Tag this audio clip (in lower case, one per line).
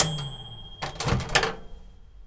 home sounds
microwave oven